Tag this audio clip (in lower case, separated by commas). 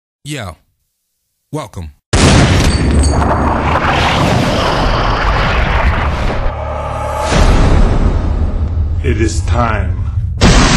speech, fusillade, outside, urban or man-made